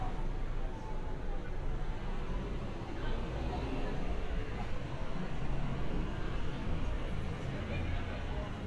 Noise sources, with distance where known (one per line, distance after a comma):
person or small group talking, far